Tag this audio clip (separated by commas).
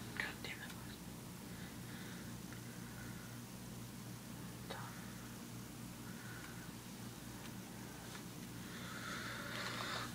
Speech, Whispering, people whispering